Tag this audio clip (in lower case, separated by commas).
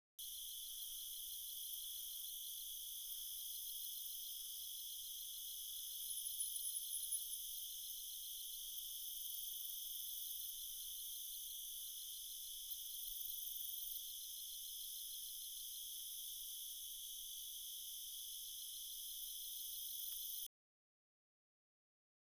cricket, insect, animal, wild animals